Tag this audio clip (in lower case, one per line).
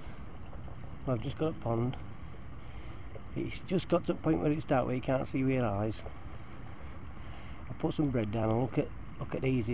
speech